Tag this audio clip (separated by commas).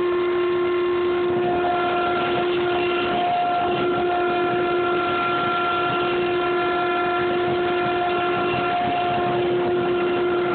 inside a large room or hall